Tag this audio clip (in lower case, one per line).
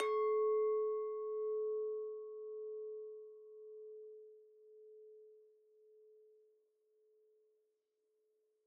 glass
clink